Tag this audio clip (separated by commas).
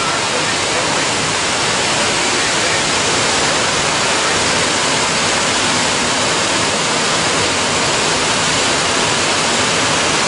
Vehicle